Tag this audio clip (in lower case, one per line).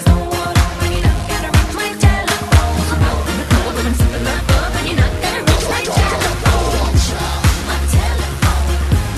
music